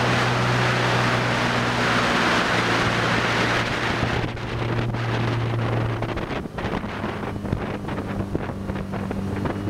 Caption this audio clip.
Loud motor running in low frequency with wind blowing